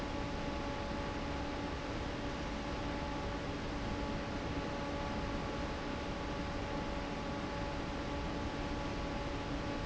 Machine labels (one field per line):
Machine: fan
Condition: normal